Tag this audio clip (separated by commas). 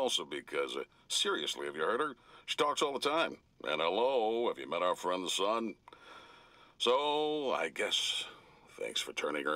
Speech